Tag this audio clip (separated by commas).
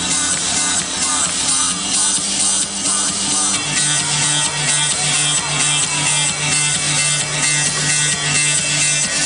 Electronic music, Music, Techno